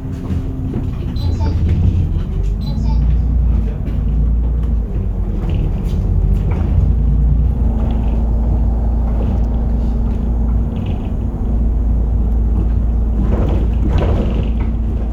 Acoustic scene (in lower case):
bus